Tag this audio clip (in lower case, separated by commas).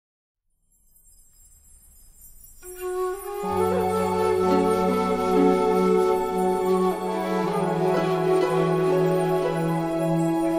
soundtrack music, music